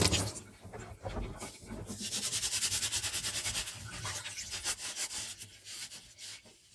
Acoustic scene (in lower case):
kitchen